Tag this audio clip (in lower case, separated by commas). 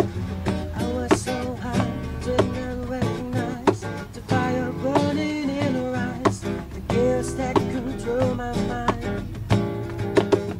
strum, guitar, plucked string instrument, music, musical instrument